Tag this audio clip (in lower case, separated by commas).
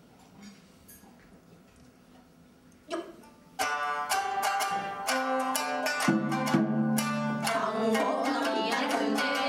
music